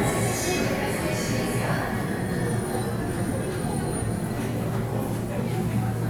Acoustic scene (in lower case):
subway station